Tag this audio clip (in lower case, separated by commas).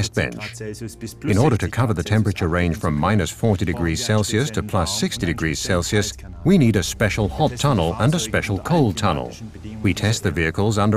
music, speech